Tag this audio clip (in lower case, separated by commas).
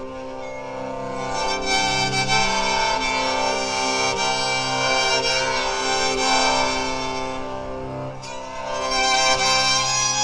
music, banjo, bowed string instrument, musical instrument